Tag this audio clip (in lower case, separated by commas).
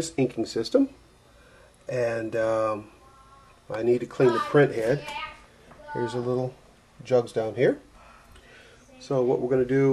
speech